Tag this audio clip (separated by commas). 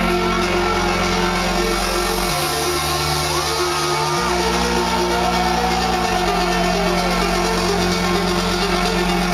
Music, Independent music